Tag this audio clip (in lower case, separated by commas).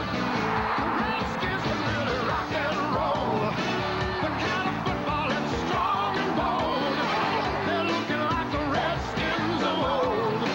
music, rock and roll